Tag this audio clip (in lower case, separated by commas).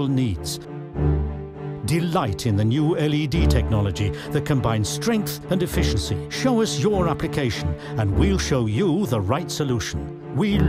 speech, music